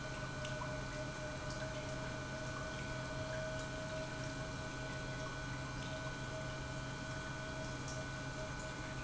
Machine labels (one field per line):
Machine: pump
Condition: normal